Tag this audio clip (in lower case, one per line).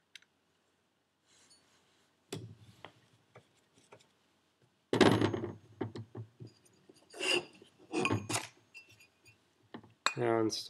inside a small room